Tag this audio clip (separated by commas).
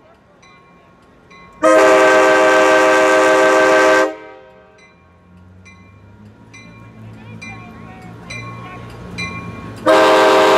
Rail transport, train wagon, Speech, Train whistle, Train, Vehicle